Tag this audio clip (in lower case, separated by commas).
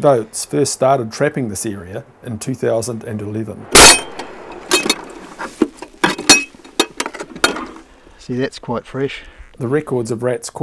speech